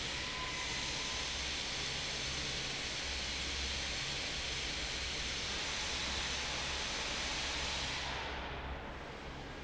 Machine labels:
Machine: fan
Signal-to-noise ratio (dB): -6 dB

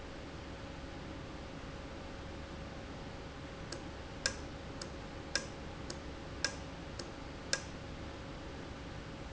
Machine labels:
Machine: valve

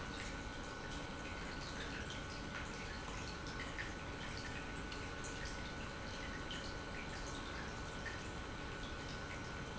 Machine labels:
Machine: pump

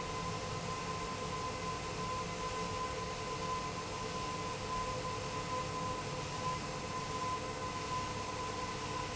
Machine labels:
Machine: pump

